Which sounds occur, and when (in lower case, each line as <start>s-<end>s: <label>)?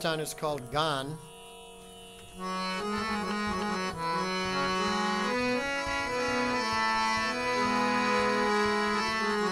0.0s-1.2s: male speech
0.0s-9.5s: music
0.5s-0.6s: tick
2.1s-2.2s: tick
3.2s-3.3s: tick
3.5s-3.6s: tick